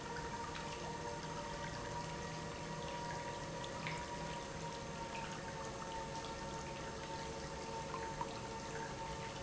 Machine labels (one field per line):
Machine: pump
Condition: abnormal